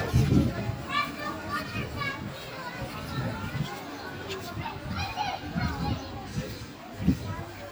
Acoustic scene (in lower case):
park